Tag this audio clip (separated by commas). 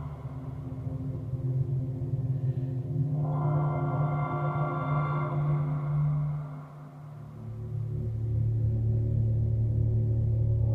Music